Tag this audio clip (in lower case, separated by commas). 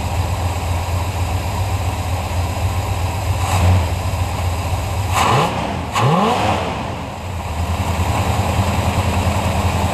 outside, urban or man-made, engine, vehicle, accelerating